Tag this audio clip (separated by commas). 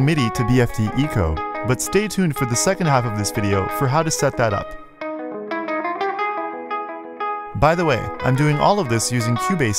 Music, Speech